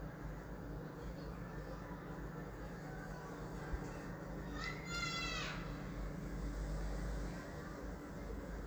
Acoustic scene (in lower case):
residential area